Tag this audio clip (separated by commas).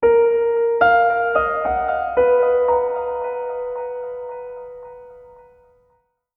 Musical instrument, Piano, Keyboard (musical), Music